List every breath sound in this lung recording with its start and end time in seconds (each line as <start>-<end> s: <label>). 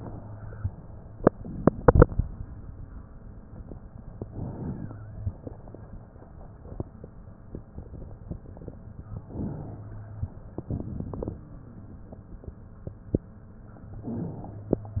4.21-5.33 s: inhalation
9.16-10.29 s: inhalation
13.83-14.96 s: inhalation